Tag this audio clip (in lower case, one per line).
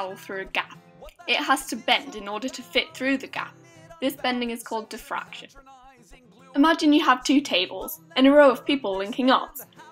music
speech